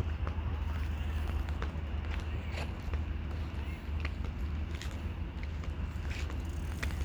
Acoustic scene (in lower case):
park